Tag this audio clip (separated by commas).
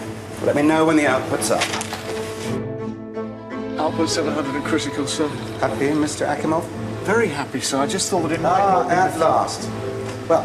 Music, Speech